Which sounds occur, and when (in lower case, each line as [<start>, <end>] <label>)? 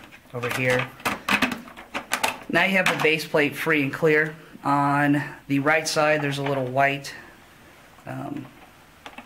[0.01, 9.25] background noise
[0.26, 0.86] generic impact sounds
[0.32, 0.83] man speaking
[1.00, 1.12] generic impact sounds
[1.23, 1.55] generic impact sounds
[1.87, 2.32] generic impact sounds
[2.49, 4.23] man speaking
[2.79, 3.02] generic impact sounds
[4.59, 5.23] man speaking
[5.41, 7.15] man speaking
[6.38, 6.50] generic impact sounds
[7.99, 8.47] man speaking
[9.00, 9.25] generic impact sounds